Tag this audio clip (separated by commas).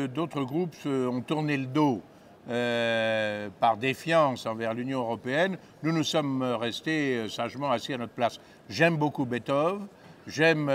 Speech